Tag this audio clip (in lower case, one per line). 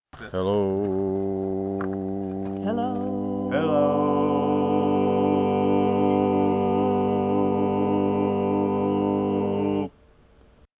singing
human voice